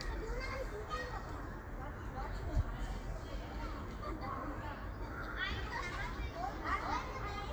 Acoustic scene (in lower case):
park